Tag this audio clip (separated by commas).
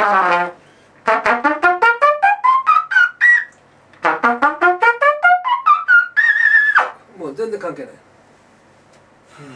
Trumpet, Brass instrument